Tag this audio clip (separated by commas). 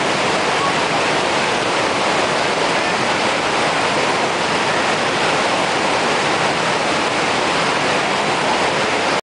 Rain on surface